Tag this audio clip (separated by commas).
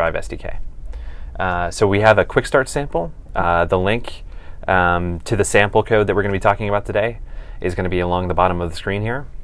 Speech